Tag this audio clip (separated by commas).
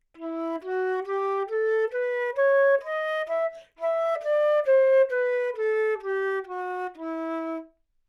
Music, woodwind instrument, Musical instrument